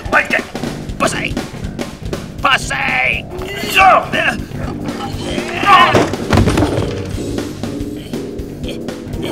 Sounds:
Music, Speech

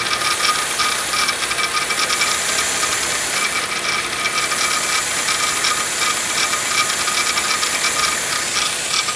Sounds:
pawl, Mechanisms, Gears

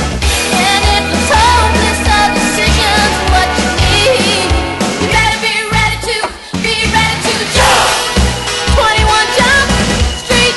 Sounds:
Music, Exciting music

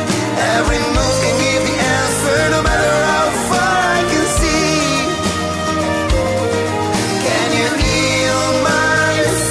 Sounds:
Singing, Music

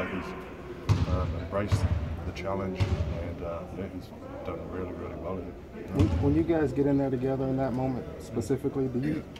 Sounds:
Speech

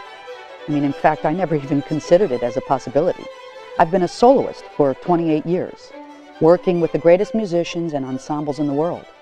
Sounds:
Speech, Music

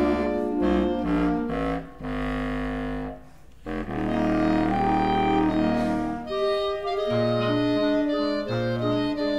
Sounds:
playing clarinet, Brass instrument, Clarinet

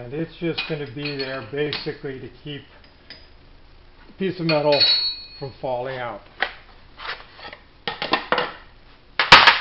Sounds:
Speech

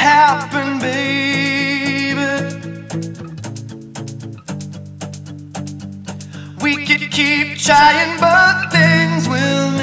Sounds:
Music

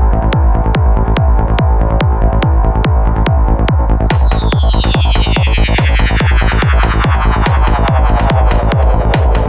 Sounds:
Music, Sampler

